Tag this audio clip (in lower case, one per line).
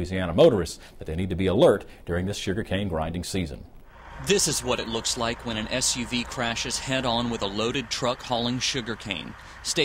speech
truck
vehicle